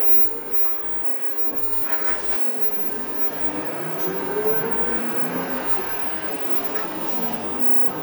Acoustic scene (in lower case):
bus